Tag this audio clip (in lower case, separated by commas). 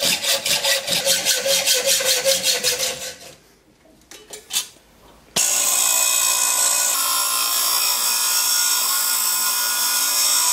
lathe spinning